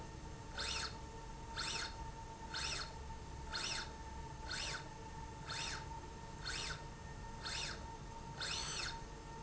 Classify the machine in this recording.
slide rail